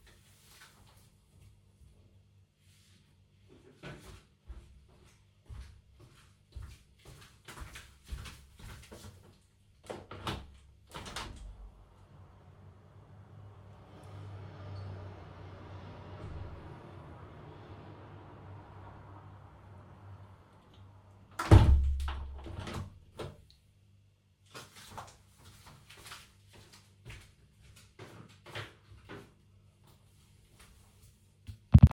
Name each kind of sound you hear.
footsteps, window